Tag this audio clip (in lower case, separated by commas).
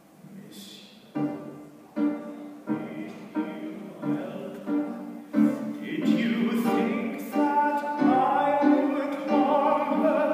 opera, music